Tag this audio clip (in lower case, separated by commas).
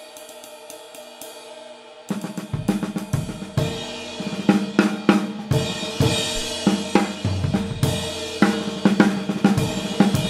hi-hat, playing cymbal, cymbal